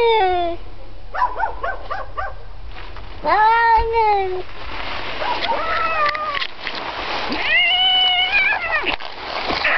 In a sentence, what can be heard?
A cat meows and a dog barks